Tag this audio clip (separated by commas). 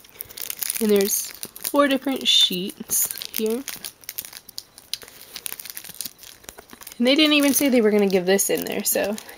Crumpling, inside a small room, Speech